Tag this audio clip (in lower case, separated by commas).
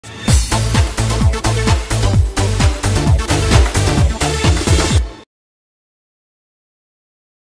music, exciting music